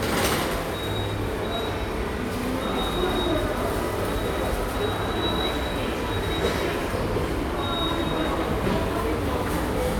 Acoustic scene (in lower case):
subway station